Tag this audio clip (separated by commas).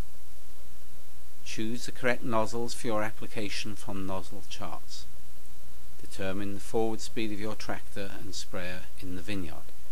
Speech